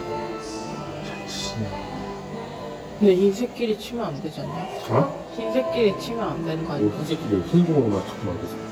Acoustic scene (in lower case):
cafe